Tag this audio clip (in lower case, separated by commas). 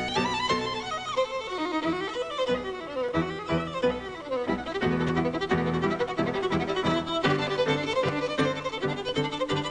fiddle, music, musical instrument, bowed string instrument